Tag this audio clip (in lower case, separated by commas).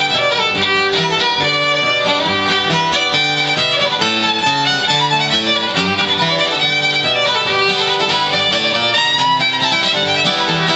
guitar, musical instrument, bluegrass, plucked string instrument, music